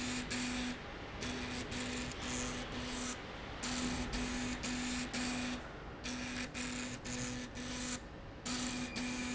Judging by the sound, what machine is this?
slide rail